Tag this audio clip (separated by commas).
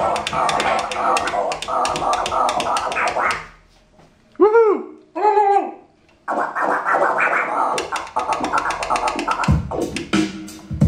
Scratching (performance technique), Music